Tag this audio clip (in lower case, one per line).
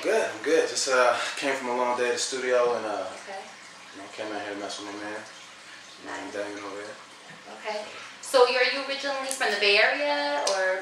speech